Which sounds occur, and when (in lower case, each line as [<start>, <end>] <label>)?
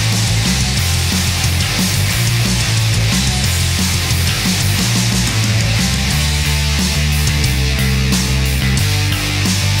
[0.00, 9.80] music